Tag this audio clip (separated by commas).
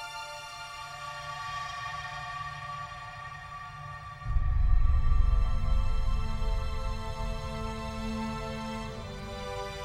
Music